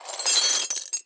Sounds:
glass
shatter

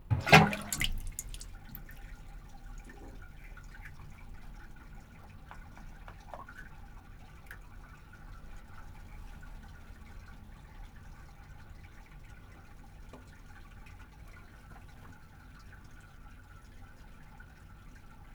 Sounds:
home sounds
bathtub (filling or washing)

